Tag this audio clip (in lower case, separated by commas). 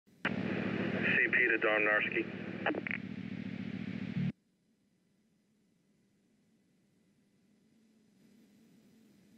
police radio chatter